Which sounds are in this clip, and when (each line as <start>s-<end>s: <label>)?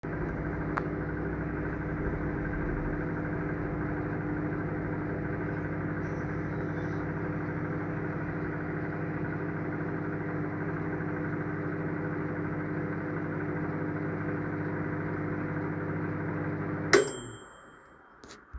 0.0s-17.5s: microwave